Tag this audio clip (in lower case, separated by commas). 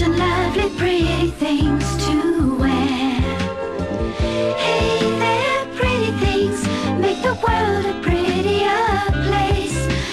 jingle (music), music